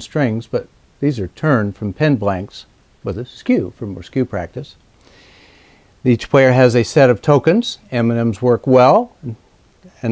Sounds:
speech

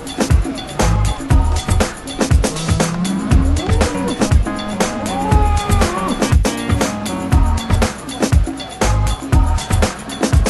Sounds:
bovinae
moo
livestock

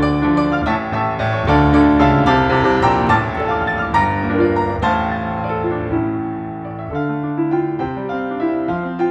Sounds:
music

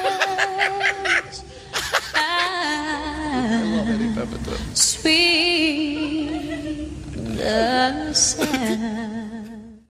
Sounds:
speech

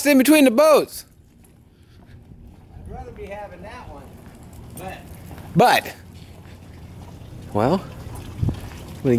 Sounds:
speech

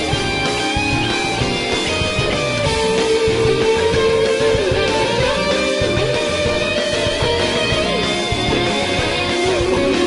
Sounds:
music

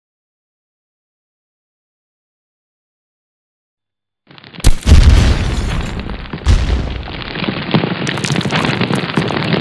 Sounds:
explosion
fire

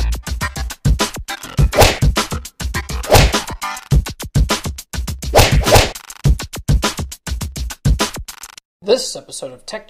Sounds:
speech
music

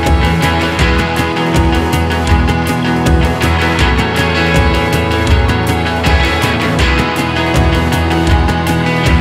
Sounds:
music

